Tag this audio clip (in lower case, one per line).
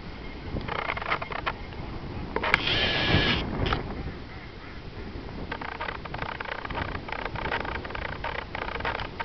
animal
duck
quack